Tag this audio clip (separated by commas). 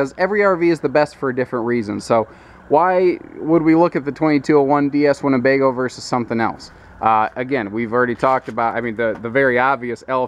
Speech